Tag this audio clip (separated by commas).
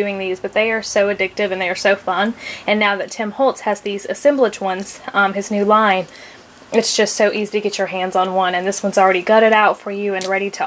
Speech